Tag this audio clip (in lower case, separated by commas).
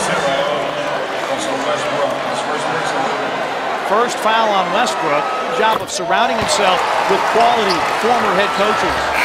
basketball bounce, speech